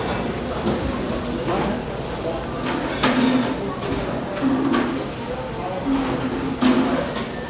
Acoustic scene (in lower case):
crowded indoor space